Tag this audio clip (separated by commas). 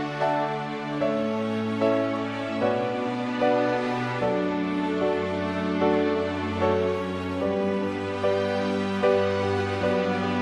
Music, Tender music